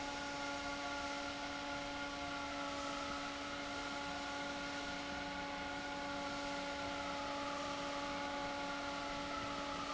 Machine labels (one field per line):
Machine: fan